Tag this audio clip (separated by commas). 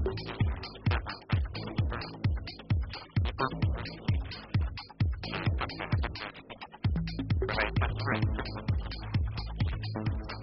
Speech, Music